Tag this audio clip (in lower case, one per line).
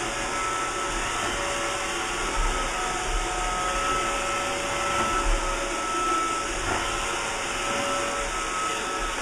vacuum cleaner cleaning floors